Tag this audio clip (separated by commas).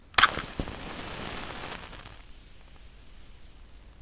Fire